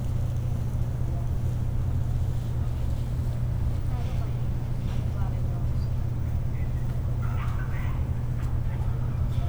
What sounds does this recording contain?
person or small group talking